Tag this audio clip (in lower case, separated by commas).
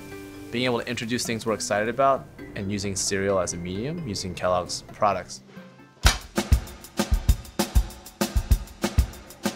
speech, music